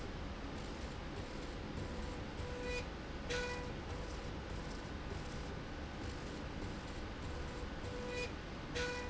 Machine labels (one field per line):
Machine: slide rail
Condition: normal